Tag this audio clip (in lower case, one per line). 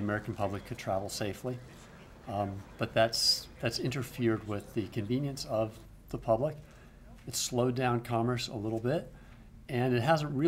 speech